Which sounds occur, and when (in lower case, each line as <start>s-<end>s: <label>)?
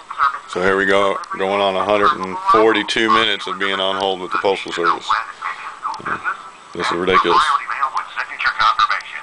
0.0s-9.2s: male speech
0.0s-9.2s: background noise